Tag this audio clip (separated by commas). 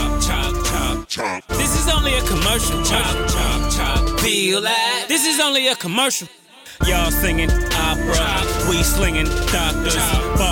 Music